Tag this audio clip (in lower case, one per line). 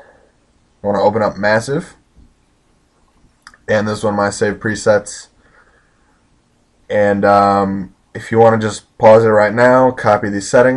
speech